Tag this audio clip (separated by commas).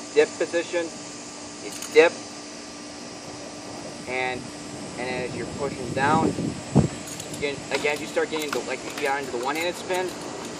outside, rural or natural, Speech